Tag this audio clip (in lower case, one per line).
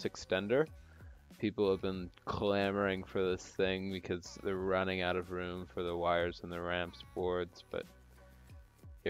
speech